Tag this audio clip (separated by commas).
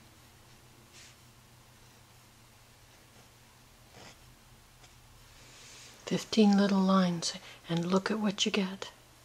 Speech, Writing